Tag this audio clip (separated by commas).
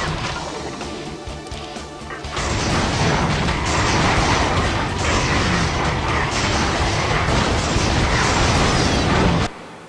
Music